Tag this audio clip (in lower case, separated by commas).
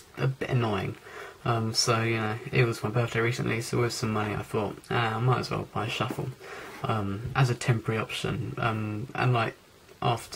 speech